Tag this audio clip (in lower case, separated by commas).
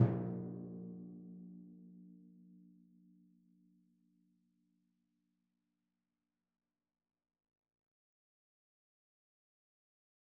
music, percussion, musical instrument, drum